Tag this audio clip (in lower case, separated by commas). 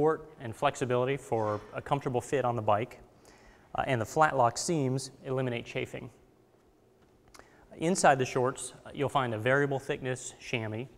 speech